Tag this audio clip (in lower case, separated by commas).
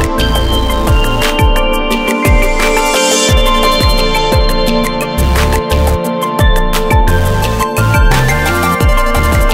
music, dubstep, electronic music